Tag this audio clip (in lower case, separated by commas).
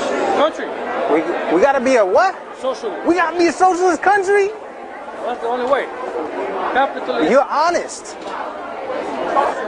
inside a public space, speech